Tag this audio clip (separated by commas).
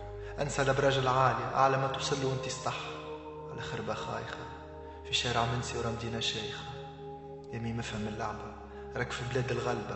Music, Narration, Speech